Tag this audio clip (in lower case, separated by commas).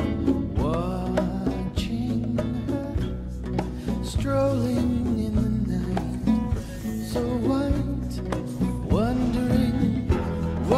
music